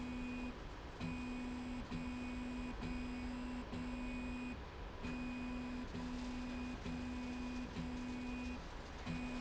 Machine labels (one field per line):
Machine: slide rail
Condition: normal